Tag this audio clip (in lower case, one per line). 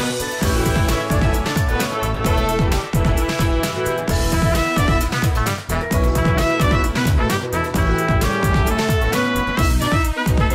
music
video game music